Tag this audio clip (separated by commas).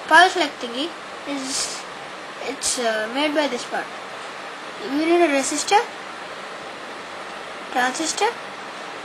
Speech